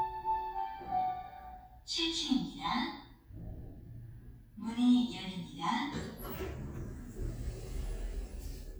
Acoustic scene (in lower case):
elevator